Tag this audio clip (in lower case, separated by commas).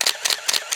mechanisms, camera